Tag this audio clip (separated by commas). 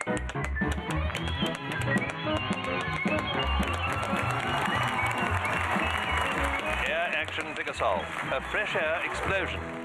Music, Tap, Speech